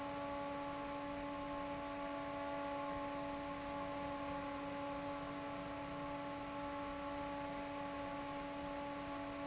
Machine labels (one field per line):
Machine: fan